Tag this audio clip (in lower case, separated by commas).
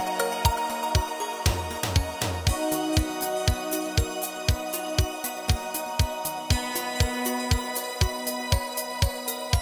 music, theme music